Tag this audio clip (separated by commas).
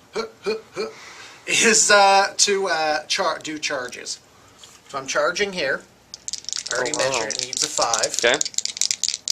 Speech